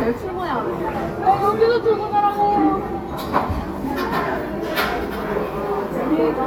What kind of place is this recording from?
crowded indoor space